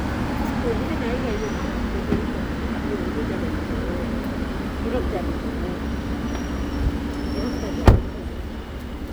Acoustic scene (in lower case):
street